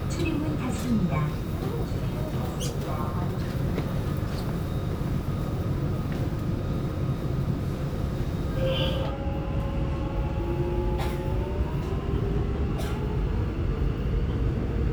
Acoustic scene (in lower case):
subway train